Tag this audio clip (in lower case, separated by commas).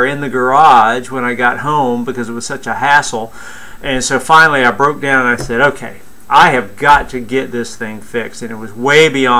tap, speech